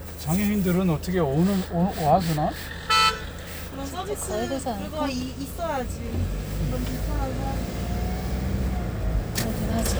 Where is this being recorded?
in a car